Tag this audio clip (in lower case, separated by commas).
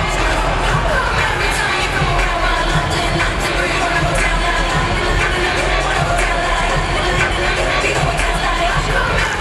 crowd